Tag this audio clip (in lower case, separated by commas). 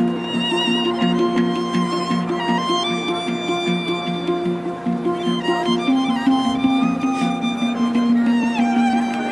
violin, musical instrument, music